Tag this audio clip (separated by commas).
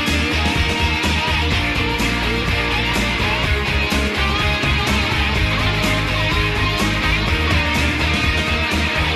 Music